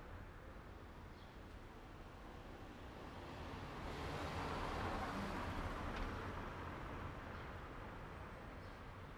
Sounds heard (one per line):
car wheels rolling
car
car engine accelerating